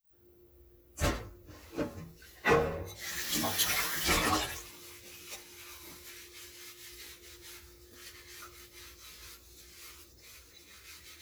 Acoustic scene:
kitchen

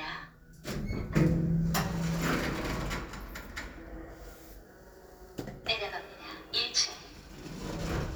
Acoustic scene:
elevator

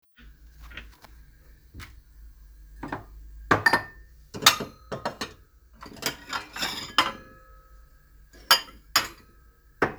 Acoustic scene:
kitchen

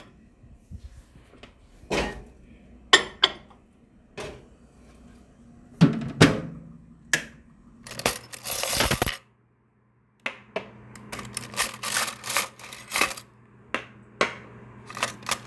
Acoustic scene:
kitchen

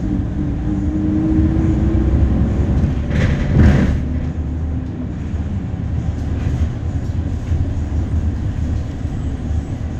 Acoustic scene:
bus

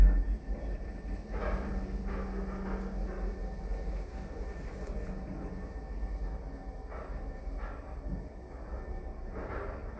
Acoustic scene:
elevator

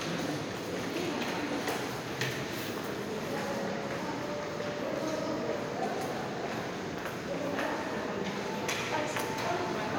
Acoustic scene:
subway station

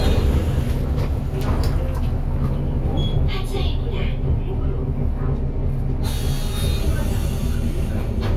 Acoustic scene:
bus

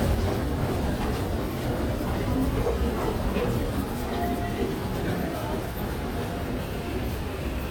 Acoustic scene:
subway station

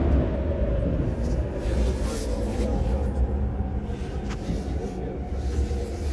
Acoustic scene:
subway train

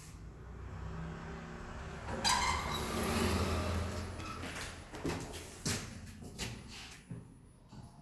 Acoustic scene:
elevator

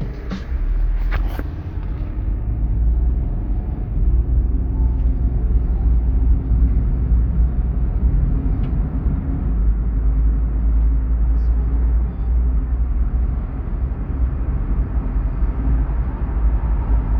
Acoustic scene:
car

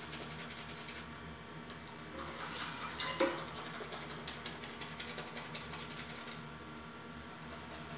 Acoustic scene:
restroom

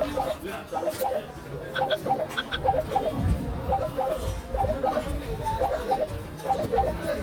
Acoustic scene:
crowded indoor space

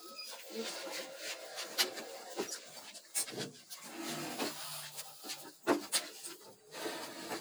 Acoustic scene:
elevator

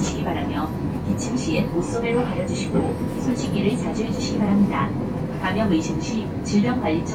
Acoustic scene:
bus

